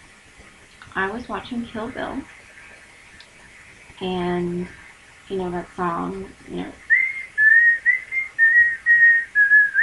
A woman speaking while someone else whistles